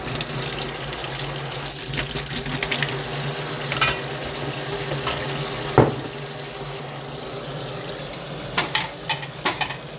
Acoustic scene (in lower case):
kitchen